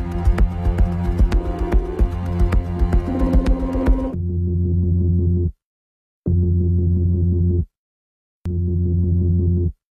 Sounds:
music

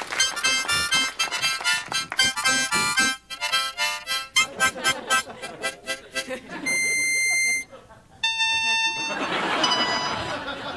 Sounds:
music

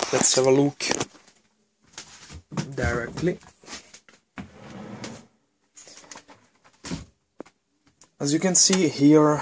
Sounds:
inside a small room, speech

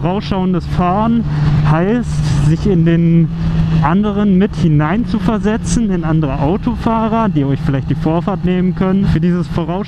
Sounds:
speech, motorcycle

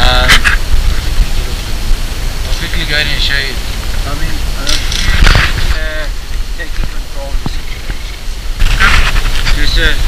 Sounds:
cheetah chirrup

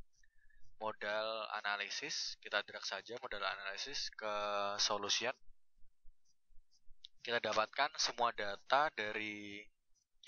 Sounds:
speech

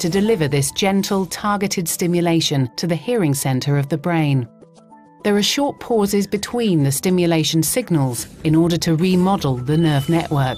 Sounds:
speech, music

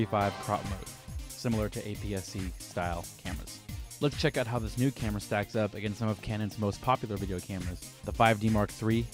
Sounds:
music, speech

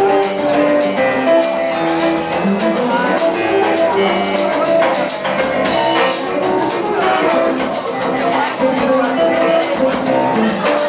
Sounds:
music, blues

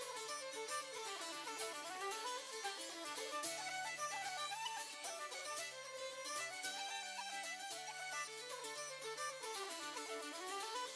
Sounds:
orchestra, musical instrument, music, classical music

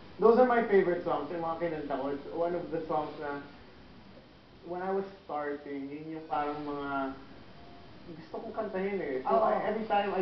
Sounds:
speech

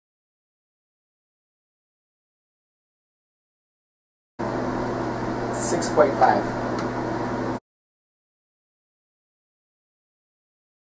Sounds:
speech, silence

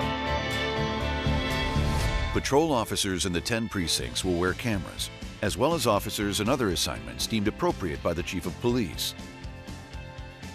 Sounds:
music, speech

